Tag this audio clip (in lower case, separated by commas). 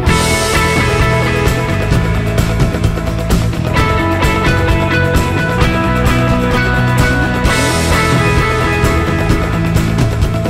music